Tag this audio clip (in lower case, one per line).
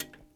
tick